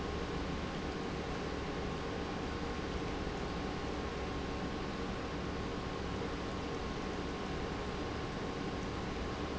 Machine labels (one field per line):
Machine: pump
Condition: normal